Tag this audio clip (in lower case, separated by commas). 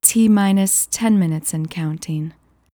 human voice, female speech, speech